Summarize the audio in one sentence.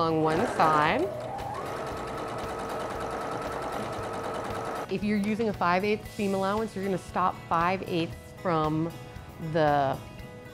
A woman speaking followed by vibrations of a sewing machine